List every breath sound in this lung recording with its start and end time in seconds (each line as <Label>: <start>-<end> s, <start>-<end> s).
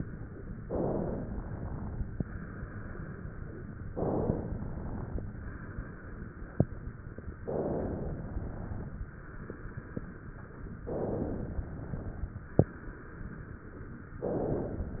Inhalation: 0.60-2.18 s, 3.92-5.20 s, 7.45-9.01 s, 10.85-12.59 s, 14.24-15.00 s
Exhalation: 2.20-3.78 s, 5.20-7.15 s, 9.01-10.75 s, 12.59-14.14 s